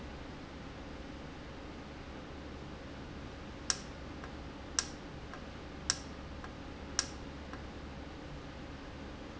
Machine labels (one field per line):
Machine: valve